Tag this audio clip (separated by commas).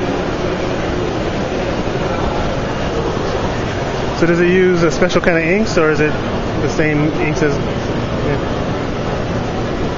Speech